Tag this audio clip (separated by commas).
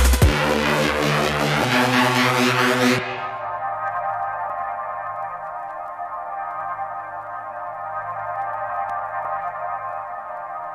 Electronic music, Music, Drum and bass